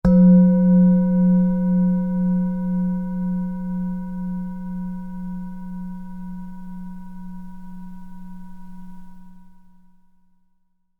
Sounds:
music
musical instrument

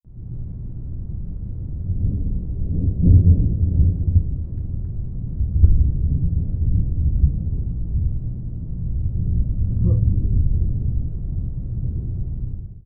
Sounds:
thunder
thunderstorm

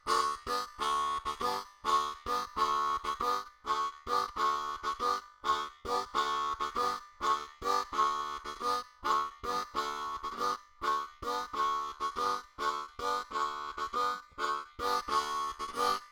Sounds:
music
harmonica
musical instrument

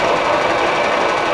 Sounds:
mechanisms

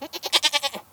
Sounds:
animal
livestock

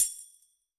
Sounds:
percussion
tambourine
music
musical instrument

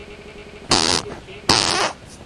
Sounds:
fart

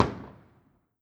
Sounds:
explosion
fireworks

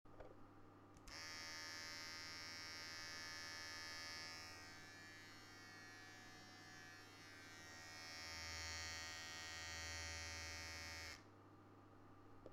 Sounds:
domestic sounds

